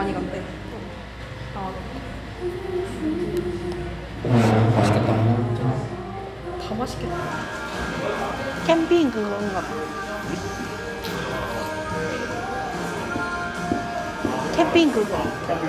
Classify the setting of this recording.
cafe